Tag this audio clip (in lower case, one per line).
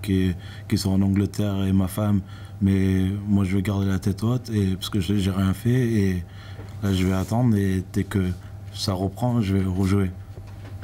speech